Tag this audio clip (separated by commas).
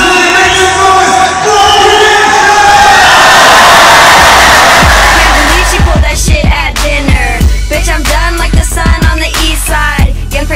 Music, Speech